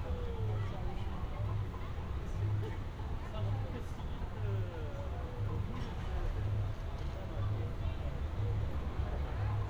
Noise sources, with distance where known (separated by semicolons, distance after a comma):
music from a fixed source, far; person or small group talking, near